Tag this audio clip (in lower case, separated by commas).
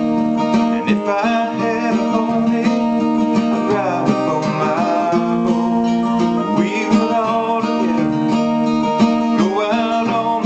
music